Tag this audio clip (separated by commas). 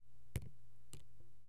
Raindrop, Drip, Liquid, Rain, Water